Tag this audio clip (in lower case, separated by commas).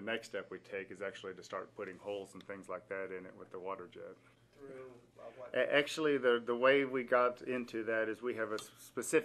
speech